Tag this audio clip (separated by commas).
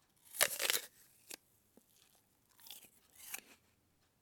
mastication